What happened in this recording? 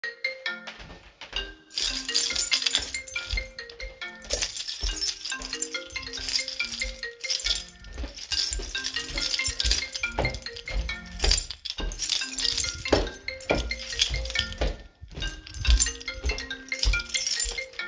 The phone keeps ringing while I walk through the hallway. Footsteps and a keychain jingling in my hand are audible. The three sounds overlap for part of the recording.